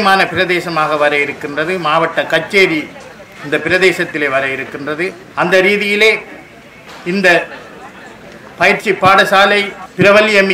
Man speaks loudly with quiet chatter in the background